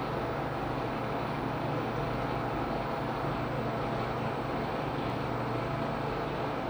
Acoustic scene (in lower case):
elevator